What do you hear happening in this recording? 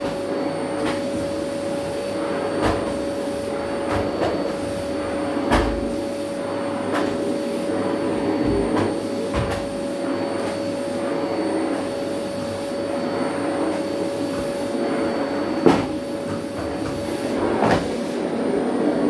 I was vacuum cleaning my dorm room.